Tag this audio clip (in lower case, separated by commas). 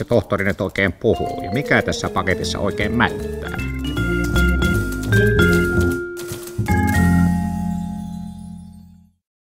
music, speech